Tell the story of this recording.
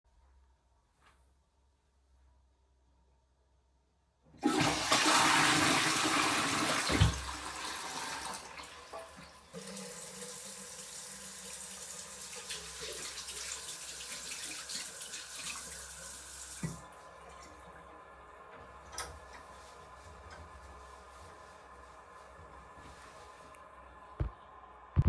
flushing the toilet, washing hands, drying them with a towel